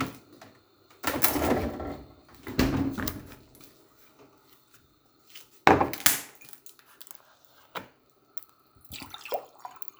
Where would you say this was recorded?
in a kitchen